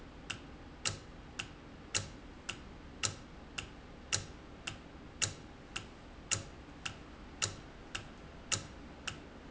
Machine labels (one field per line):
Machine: valve